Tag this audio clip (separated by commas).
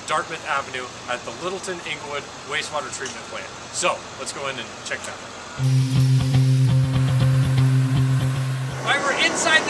Speech